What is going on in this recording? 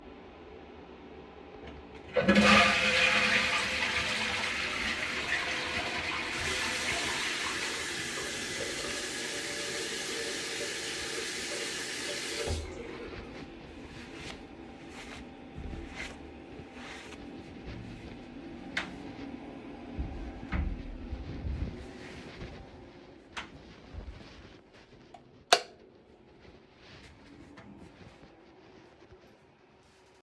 I flushed the toilet and washed my hands, wipe them with towel, open the door, turned off the light, closed the door